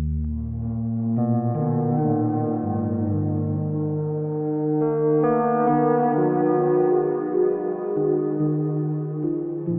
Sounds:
ambient music

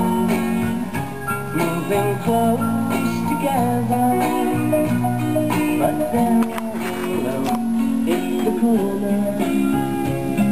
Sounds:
music

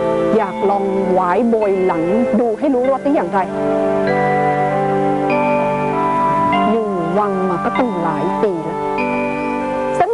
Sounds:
music
speech

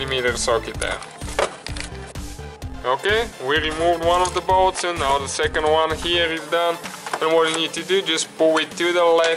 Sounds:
speech
music

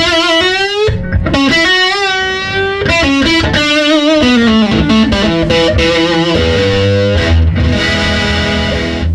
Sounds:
speech
music

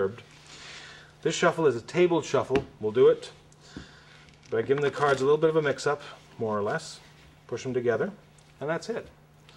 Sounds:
speech
shuffling cards

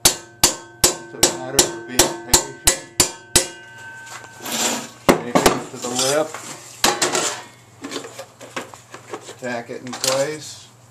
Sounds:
speech

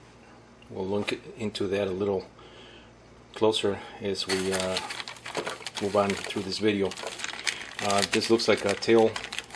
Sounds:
speech

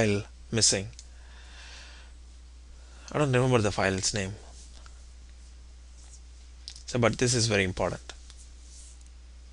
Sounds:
speech

